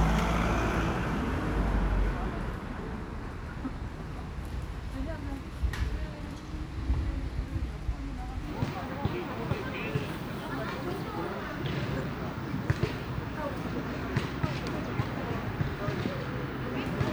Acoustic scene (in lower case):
residential area